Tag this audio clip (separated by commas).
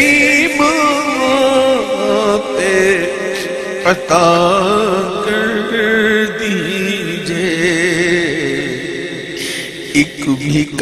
Whimper